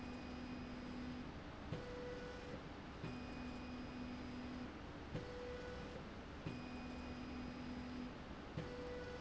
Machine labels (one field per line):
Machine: slide rail